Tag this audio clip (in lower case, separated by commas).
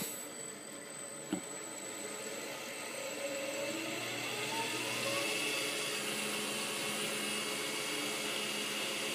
lathe spinning